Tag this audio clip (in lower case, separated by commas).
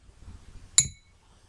glass